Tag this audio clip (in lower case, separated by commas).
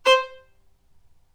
musical instrument, bowed string instrument, music